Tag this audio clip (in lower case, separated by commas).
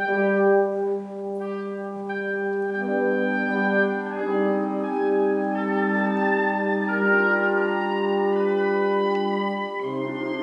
orchestra, musical instrument, music